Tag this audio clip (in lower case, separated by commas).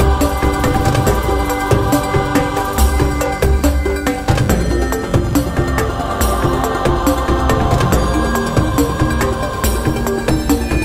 rhythm and blues, music